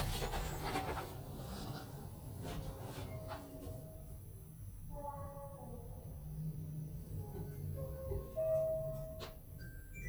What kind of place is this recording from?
elevator